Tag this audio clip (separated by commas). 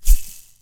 Rattle (instrument), Music, Musical instrument, Percussion